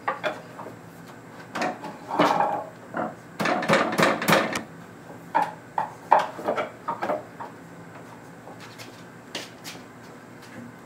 A clicking sound, banging four times, then clicking again